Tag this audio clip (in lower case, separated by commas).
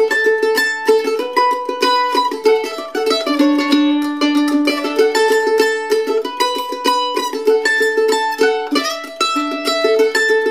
music, musical instrument, pizzicato